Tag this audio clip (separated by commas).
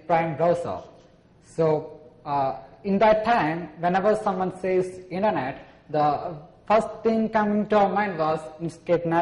Speech